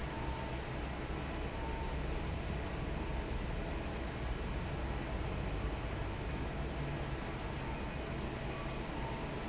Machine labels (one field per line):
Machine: fan